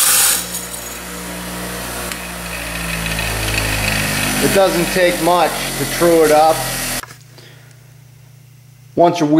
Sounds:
electric grinder grinding

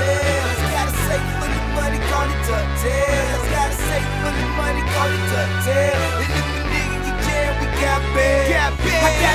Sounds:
Exciting music, Music

